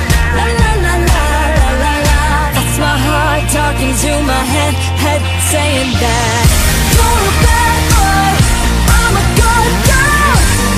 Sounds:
music
pop music

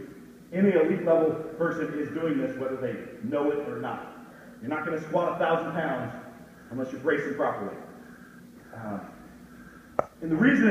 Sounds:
speech

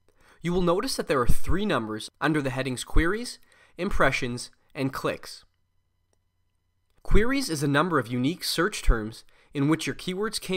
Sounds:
speech

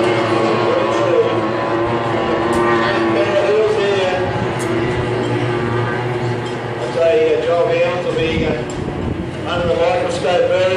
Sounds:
speech
vehicle
motorboat

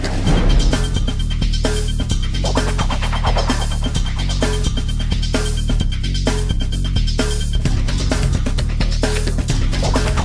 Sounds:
music
exciting music

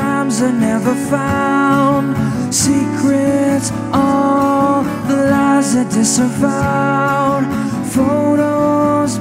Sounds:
music

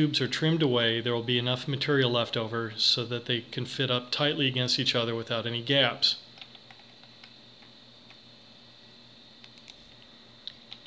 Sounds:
speech

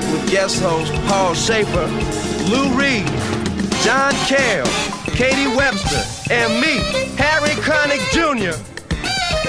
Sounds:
music

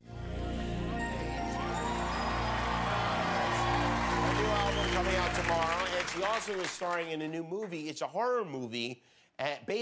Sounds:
music
speech

